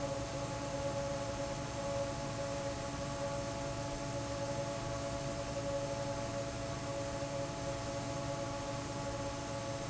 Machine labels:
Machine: fan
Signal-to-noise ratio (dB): -6 dB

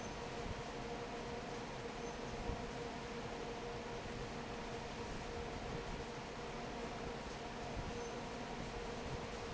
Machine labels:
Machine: fan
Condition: normal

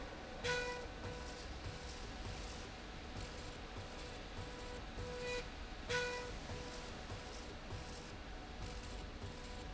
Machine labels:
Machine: slide rail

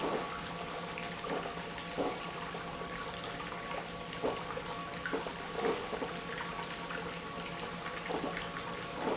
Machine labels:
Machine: pump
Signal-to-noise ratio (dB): 0 dB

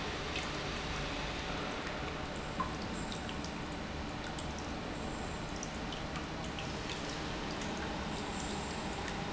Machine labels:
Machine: pump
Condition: normal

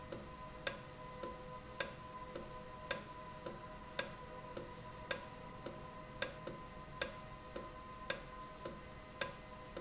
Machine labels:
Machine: valve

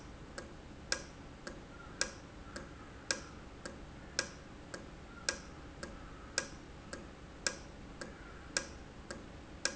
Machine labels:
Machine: valve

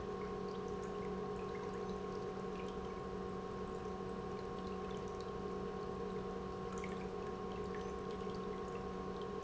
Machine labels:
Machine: pump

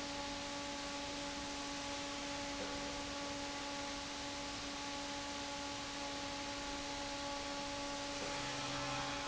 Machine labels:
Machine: fan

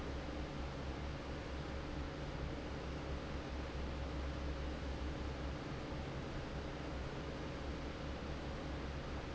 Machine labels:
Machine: fan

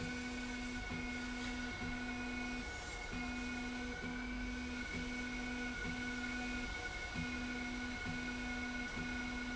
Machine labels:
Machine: slide rail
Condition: normal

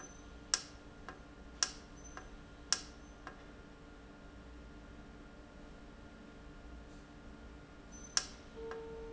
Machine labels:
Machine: valve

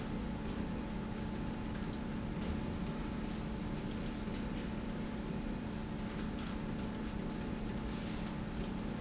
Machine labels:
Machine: slide rail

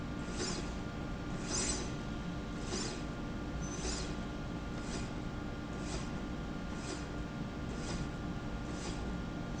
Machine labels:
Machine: slide rail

